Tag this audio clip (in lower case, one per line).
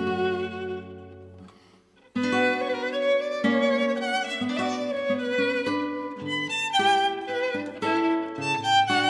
acoustic guitar
guitar
music
strum
plucked string instrument
musical instrument
fiddle